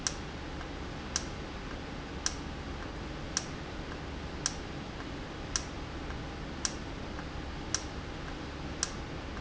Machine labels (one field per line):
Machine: valve